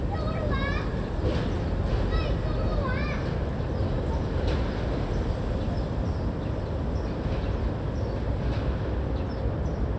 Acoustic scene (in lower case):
residential area